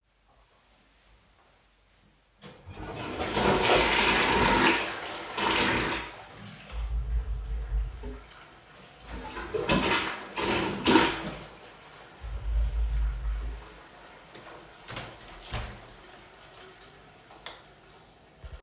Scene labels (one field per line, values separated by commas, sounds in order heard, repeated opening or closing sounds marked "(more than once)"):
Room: bathroom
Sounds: toilet flushing, window